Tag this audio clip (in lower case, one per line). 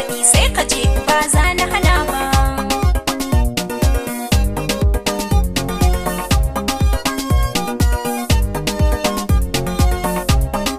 music